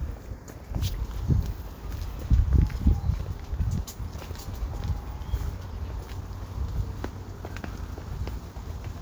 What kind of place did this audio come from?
residential area